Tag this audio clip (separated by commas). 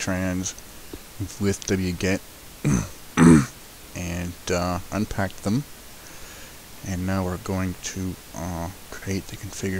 Speech